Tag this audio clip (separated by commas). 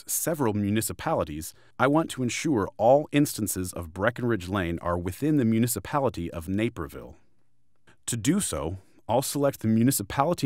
Speech